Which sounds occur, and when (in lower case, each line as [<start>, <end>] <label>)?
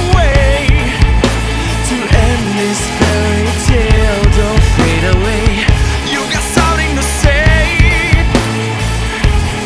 [0.00, 1.04] male singing
[0.00, 9.65] music
[1.84, 5.72] male singing
[6.04, 8.22] male singing